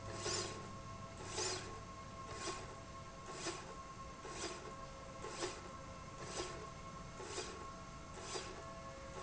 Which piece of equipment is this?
slide rail